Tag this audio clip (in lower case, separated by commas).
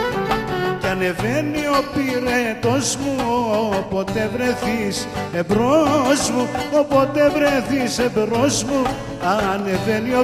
music